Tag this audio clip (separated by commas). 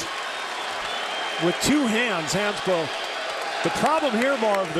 Speech